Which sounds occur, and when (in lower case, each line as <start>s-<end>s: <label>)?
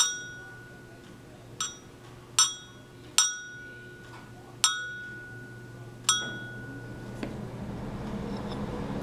0.0s-1.0s: chink
0.0s-1.5s: speech
0.0s-9.0s: mechanisms
0.0s-9.0s: television
1.0s-1.2s: generic impact sounds
1.5s-1.8s: chink
2.0s-2.3s: speech
2.0s-2.1s: generic impact sounds
2.3s-2.8s: chink
2.8s-3.1s: speech
3.2s-4.0s: chink
3.6s-5.0s: speech
4.0s-4.2s: generic impact sounds
4.6s-5.7s: chink
5.3s-6.0s: speech
6.0s-7.0s: chink
6.2s-6.3s: generic impact sounds
7.2s-7.3s: generic impact sounds
8.2s-8.5s: surface contact